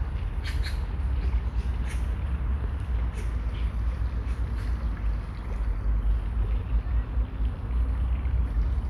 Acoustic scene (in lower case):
park